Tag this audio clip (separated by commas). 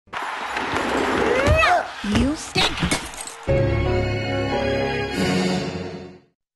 Speech, Music, Television